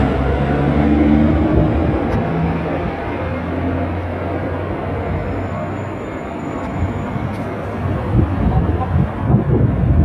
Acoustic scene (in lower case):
street